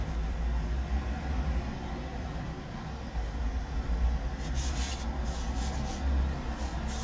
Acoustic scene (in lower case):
residential area